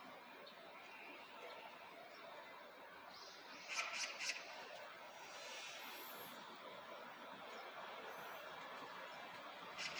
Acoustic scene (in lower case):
park